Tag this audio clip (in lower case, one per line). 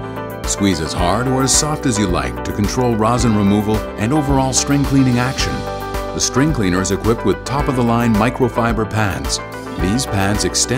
music
speech